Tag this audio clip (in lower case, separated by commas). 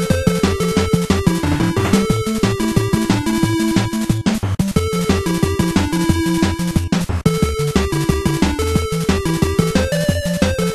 video game music, music